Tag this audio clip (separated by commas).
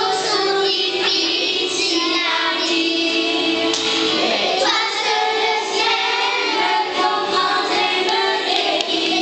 Music